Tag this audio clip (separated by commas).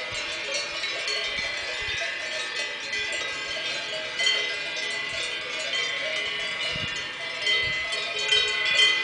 cattle